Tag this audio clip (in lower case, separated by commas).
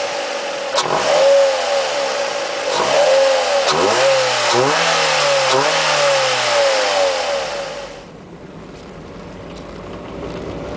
vehicle, car, outside, rural or natural